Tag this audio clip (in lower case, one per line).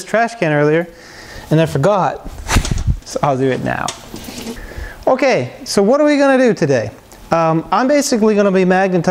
speech